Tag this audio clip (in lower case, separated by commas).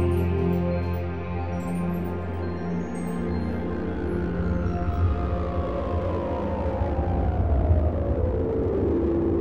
music